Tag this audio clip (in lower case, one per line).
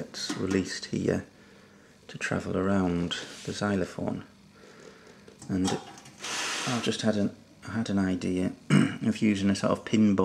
speech